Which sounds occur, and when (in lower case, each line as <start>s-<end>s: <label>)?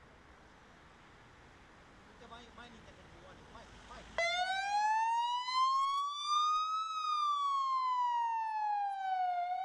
0.0s-9.6s: motor vehicle (road)
2.1s-4.1s: male speech
4.2s-9.6s: fire truck (siren)